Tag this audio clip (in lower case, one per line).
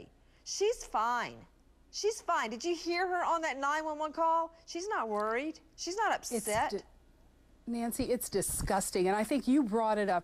speech